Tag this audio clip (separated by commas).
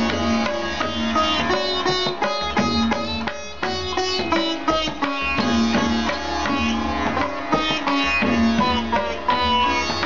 playing sitar